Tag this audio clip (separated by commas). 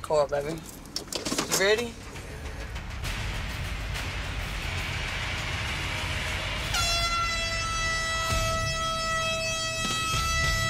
air horn